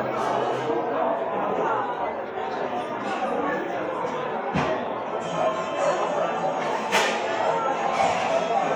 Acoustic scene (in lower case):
cafe